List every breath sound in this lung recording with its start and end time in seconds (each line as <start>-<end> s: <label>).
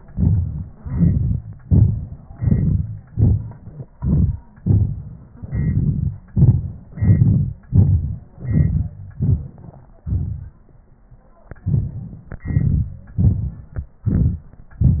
0.11-0.81 s: inhalation
0.82-1.58 s: exhalation
1.59-2.36 s: inhalation
2.36-3.13 s: exhalation
3.12-3.94 s: inhalation
3.96-4.60 s: exhalation
4.64-5.44 s: inhalation
5.43-6.32 s: exhalation
6.32-6.93 s: inhalation
6.94-7.68 s: exhalation
7.70-8.39 s: inhalation
8.39-9.16 s: exhalation
9.17-10.07 s: inhalation
10.07-11.65 s: exhalation
11.64-12.41 s: inhalation
12.43-13.15 s: exhalation
13.16-14.05 s: inhalation
14.05-14.82 s: exhalation